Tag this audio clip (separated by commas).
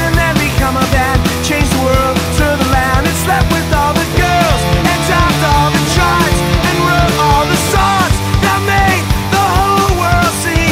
Music, Rock and roll, Progressive rock